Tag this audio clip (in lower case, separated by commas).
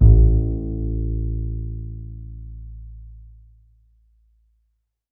music, musical instrument, bowed string instrument